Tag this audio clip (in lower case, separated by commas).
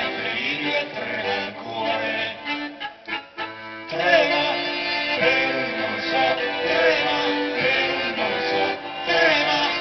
music